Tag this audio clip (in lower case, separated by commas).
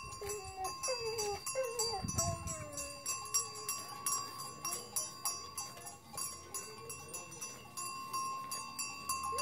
bovinae cowbell